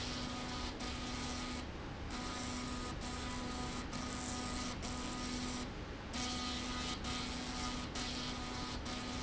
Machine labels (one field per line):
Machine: slide rail